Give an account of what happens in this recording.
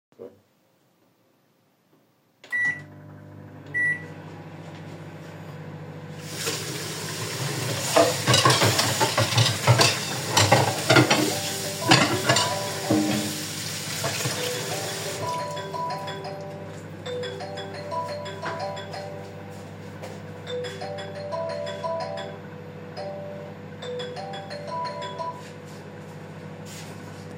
I turned on the microwave to unfreeze some food decided to wash some plates until I was waiting, then suddenly my phone rang.